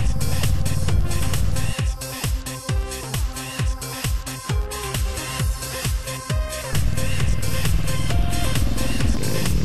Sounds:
music

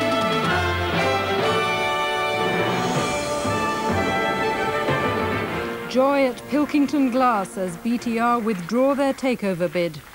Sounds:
music
speech

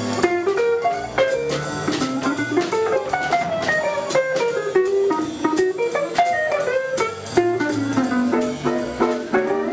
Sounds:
music
swing music

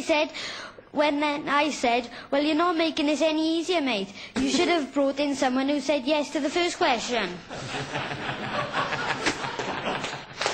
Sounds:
speech

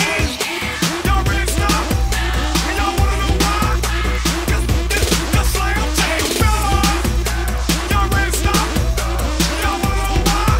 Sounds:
music

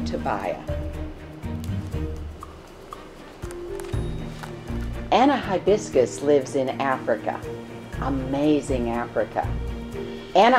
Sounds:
speech
music

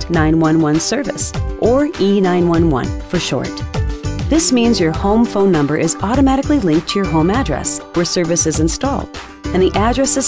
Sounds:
music
speech

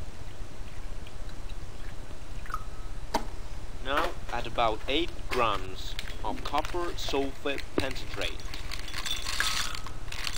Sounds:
speech

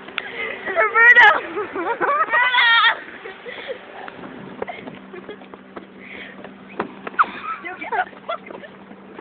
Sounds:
speech

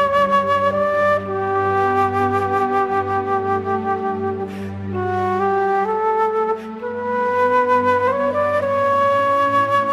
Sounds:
flute

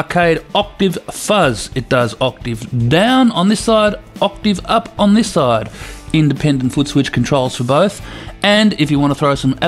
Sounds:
speech

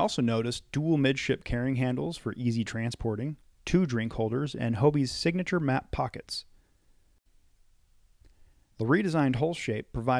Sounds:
speech

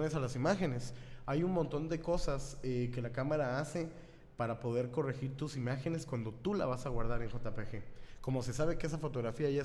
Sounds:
speech

